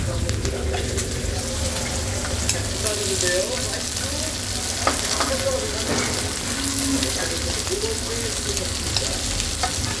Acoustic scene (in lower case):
restaurant